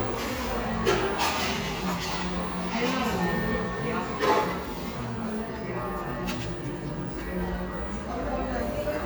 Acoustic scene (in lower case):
cafe